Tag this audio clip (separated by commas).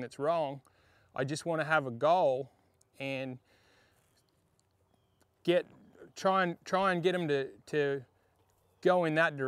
Speech